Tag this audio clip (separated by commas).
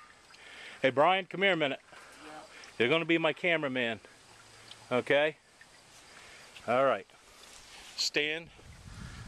Speech